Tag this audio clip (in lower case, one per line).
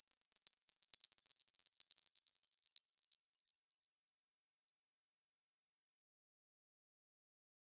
chime
bell